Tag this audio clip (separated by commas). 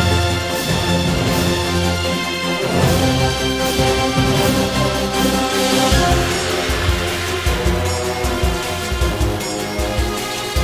Music